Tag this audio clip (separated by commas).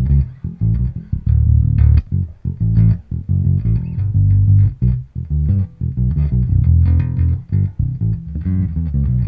Bass guitar, playing bass guitar, Music